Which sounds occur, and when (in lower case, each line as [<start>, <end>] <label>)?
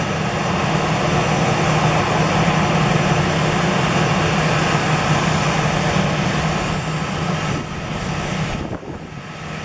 [0.00, 9.64] aircraft engine
[0.00, 9.64] wind noise (microphone)